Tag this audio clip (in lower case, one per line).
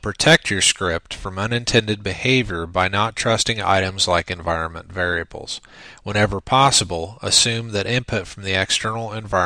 speech